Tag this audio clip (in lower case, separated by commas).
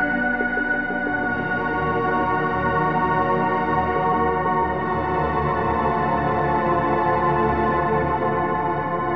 music